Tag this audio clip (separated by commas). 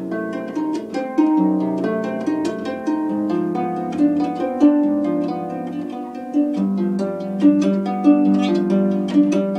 playing harp